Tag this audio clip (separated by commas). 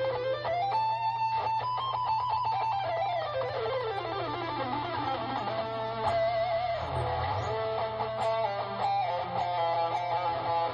Music